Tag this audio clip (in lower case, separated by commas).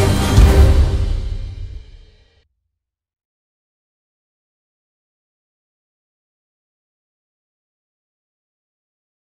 music